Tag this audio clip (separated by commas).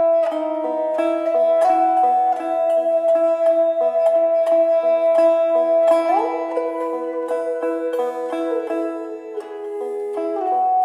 Musical instrument, Music, Banjo